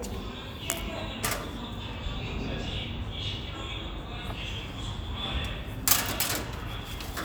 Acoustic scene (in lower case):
elevator